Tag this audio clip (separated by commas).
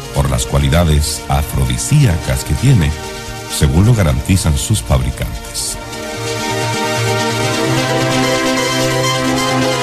Music, Speech